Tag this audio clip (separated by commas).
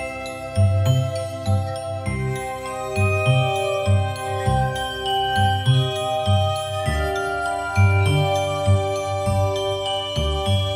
Jingle, Music